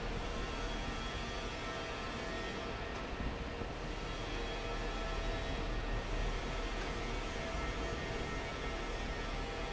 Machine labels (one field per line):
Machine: fan